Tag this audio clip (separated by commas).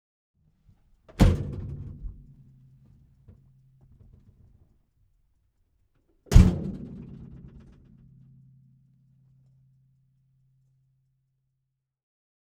Motor vehicle (road), Vehicle